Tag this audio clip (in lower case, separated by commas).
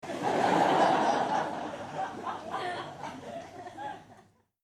human group actions, human voice, crowd, laughter